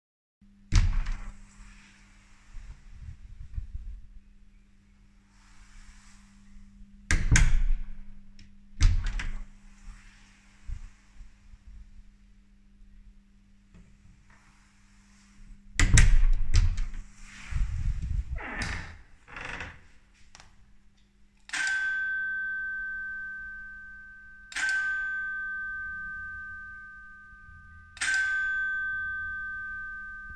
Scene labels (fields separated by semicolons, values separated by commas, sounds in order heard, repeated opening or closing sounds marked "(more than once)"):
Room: hallway; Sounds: door (more than once), bell ringing